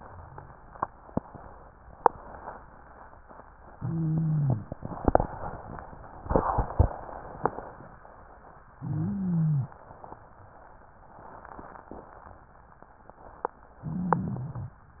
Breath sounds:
3.74-4.66 s: wheeze
8.78-9.70 s: wheeze
13.84-14.76 s: wheeze

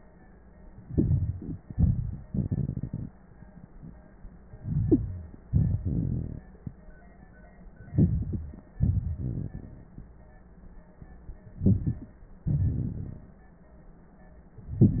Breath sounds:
4.45-5.47 s: inhalation
4.45-5.47 s: crackles
5.49-6.44 s: wheeze
5.49-6.58 s: exhalation
7.82-8.77 s: inhalation
7.82-8.77 s: crackles
8.78-9.56 s: wheeze
8.78-10.10 s: exhalation
11.52-12.44 s: inhalation
11.52-12.44 s: crackles
12.45-13.62 s: exhalation

